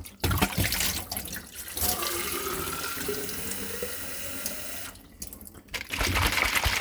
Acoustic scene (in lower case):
kitchen